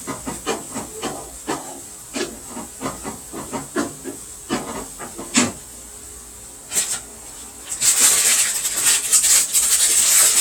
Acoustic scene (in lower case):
kitchen